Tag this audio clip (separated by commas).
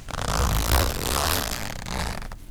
Zipper (clothing), Domestic sounds